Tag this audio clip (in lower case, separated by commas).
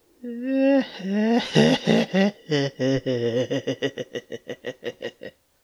laughter, human voice